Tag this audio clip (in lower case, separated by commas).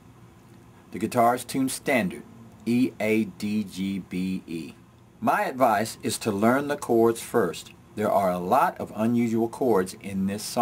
speech